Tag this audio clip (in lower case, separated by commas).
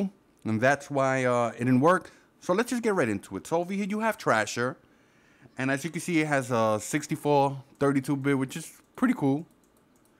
speech